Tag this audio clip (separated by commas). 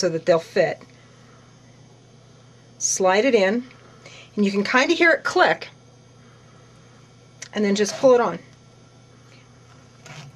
Speech